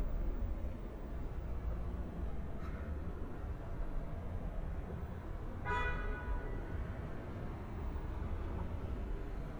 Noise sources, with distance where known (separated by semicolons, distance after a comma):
car horn, near